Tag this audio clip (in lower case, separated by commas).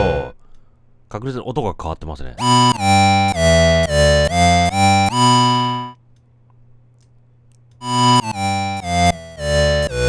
playing synthesizer